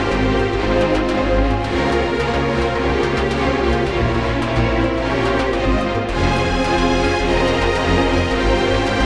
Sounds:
music

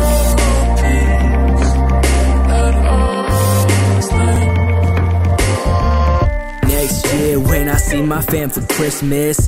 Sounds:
hip hop music, music

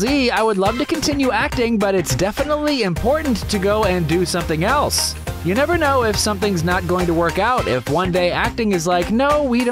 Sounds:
music, speech

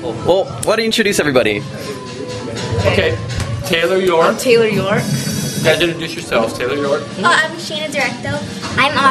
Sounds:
speech, music

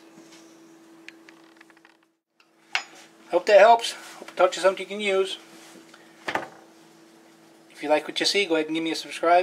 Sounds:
eating with cutlery

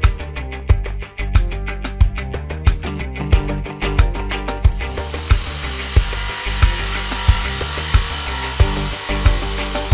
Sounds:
tools, power tool

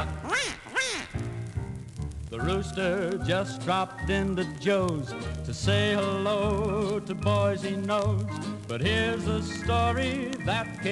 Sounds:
quack, music

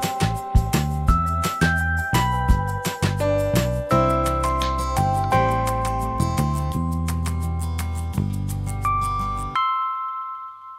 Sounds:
inside a small room, music

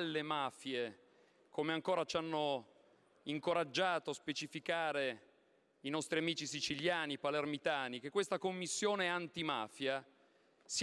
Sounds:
speech

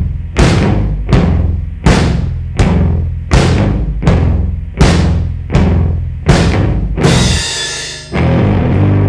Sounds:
bass drum, drum kit, percussion, drum, snare drum

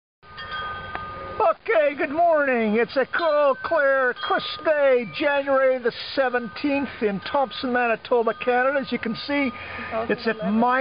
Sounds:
speech

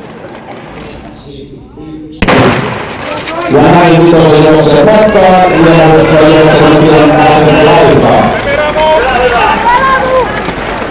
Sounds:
speech, run, outside, urban or man-made

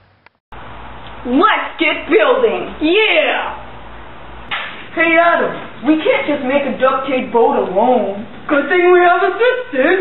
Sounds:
speech

